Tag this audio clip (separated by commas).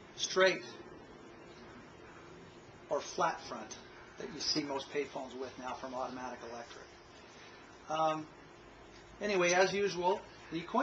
Speech